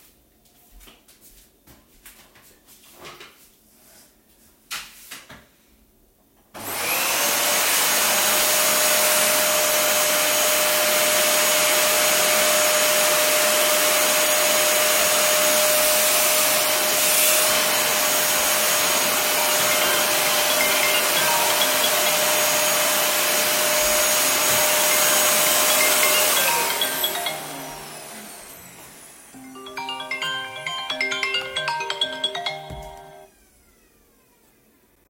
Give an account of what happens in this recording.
I was cleaning the living room floor with a vacuum cleaner. While the vacuum was running, I heard my phone ringing on a nearby table. I eventually turned off the vacuum cleaner to pick up the call.(polyphony)